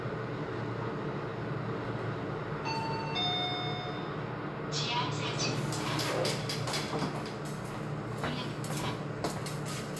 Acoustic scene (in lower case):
elevator